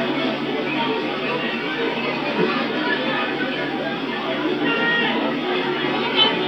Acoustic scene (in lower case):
park